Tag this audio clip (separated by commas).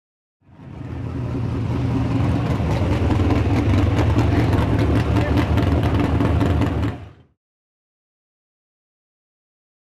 Speech, Vehicle